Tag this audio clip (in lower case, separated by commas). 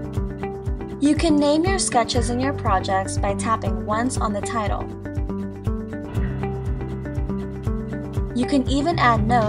music, speech